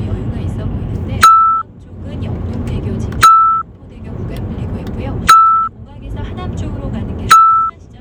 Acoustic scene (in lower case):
car